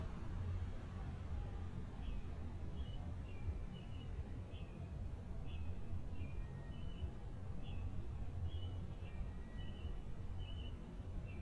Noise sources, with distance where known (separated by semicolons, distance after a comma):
background noise